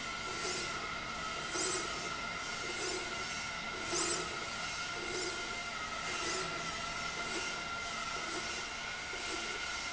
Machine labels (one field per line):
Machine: slide rail